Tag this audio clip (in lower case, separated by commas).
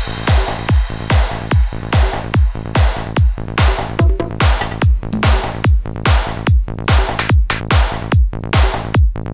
music